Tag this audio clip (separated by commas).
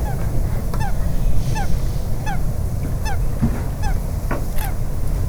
Bird, Animal, Wild animals